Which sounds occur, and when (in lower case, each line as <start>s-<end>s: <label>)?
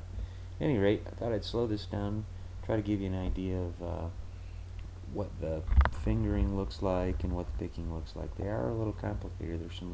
0.0s-9.9s: mechanisms
0.1s-0.6s: breathing
0.6s-2.2s: man speaking
2.6s-4.1s: man speaking
4.2s-4.7s: breathing
5.1s-5.7s: man speaking
5.7s-5.9s: generic impact sounds
6.0s-9.9s: man speaking